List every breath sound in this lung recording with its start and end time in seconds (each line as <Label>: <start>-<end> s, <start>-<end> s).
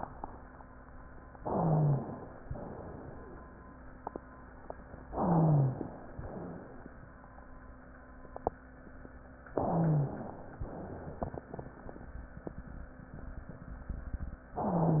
Inhalation: 1.37-2.39 s, 5.14-6.17 s, 9.58-10.59 s
Exhalation: 2.45-3.42 s, 6.21-6.89 s, 10.66-11.77 s
Wheeze: 1.42-2.09 s, 5.14-5.83 s, 9.58-10.27 s